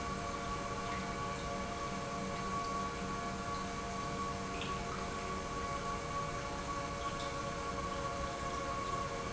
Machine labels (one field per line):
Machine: pump